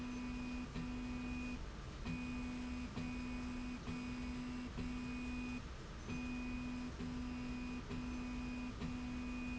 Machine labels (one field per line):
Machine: slide rail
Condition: normal